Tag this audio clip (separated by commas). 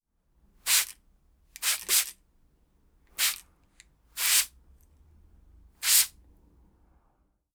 Liquid